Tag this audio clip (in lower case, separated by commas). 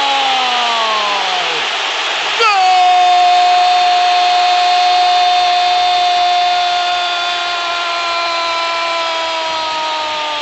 speech, radio